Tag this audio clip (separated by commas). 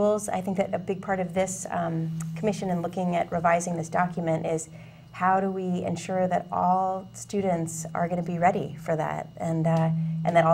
Speech